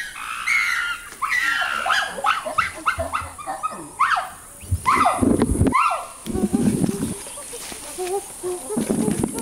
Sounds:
chimpanzee pant-hooting

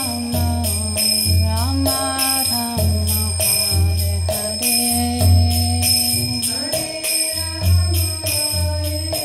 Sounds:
Mantra, Music

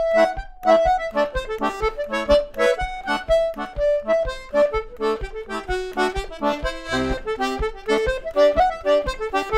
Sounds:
playing accordion, Musical instrument, Accordion, Music

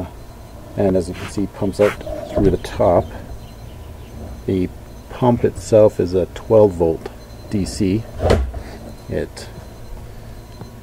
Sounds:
Speech

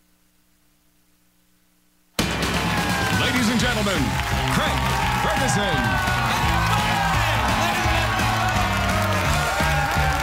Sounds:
Speech, Music

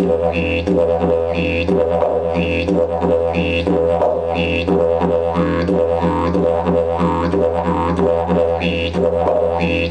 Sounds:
Music, Didgeridoo

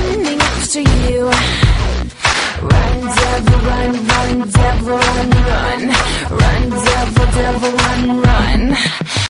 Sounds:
Music

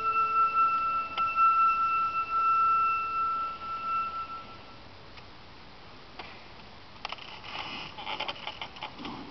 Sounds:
Wind instrument, Flute

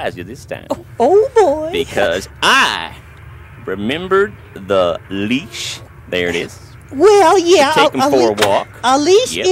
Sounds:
Speech

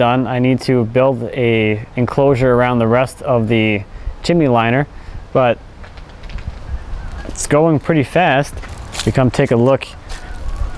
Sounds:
Speech

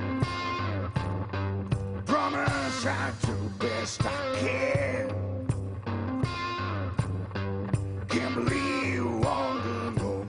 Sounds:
Music

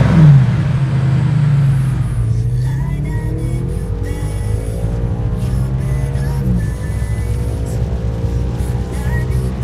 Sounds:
Music

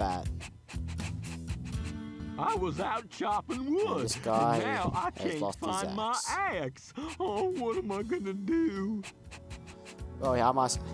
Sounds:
Speech, Music

